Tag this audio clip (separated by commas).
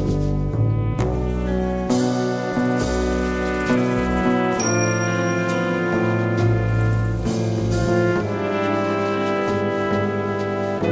Orchestra, Music